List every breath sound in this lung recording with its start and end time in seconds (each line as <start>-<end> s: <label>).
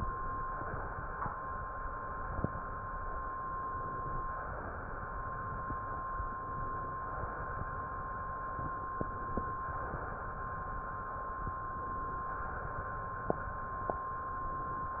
3.44-4.34 s: inhalation
4.34-5.39 s: exhalation
6.31-7.22 s: inhalation
7.24-8.35 s: exhalation
8.99-9.89 s: inhalation
9.86-11.36 s: exhalation
11.46-12.36 s: inhalation
12.37-13.37 s: exhalation
13.97-14.88 s: inhalation
14.88-15.00 s: exhalation